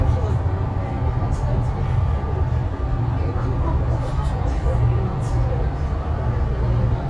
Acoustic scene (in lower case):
bus